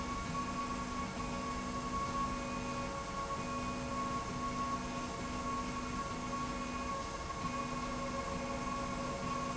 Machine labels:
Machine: slide rail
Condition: normal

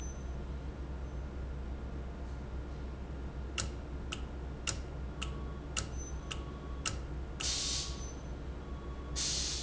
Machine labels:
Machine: valve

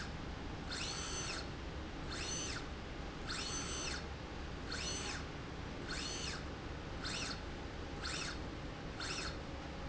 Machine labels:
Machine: slide rail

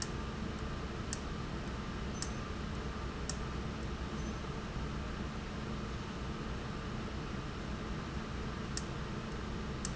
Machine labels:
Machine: valve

